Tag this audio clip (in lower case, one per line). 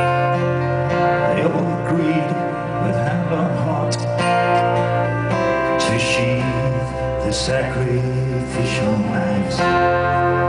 music